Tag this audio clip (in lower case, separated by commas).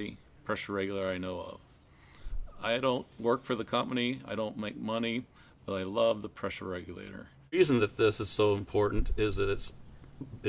speech